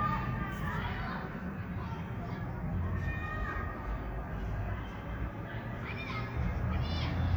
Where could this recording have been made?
in a park